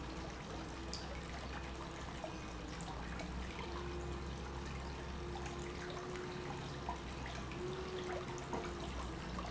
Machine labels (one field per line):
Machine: pump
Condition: normal